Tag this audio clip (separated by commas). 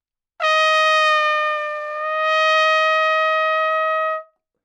Trumpet, Brass instrument, Musical instrument, Music